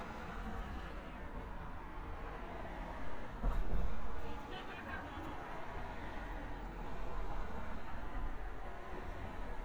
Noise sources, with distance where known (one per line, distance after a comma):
unidentified human voice, near